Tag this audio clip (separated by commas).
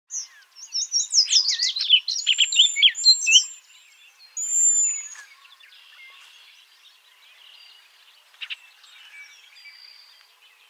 baltimore oriole calling